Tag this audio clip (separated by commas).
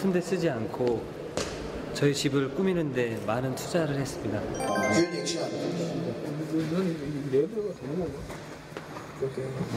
Speech, Music